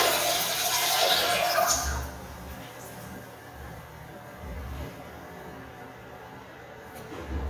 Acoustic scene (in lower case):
restroom